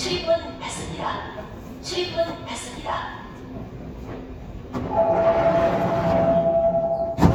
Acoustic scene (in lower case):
subway station